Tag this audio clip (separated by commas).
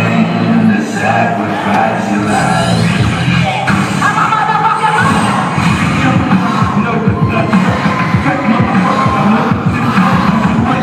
Music, Electronic music, Techno